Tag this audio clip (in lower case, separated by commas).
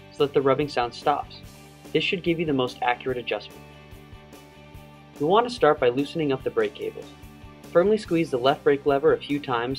music, speech